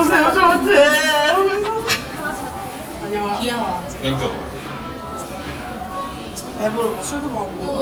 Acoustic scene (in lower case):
cafe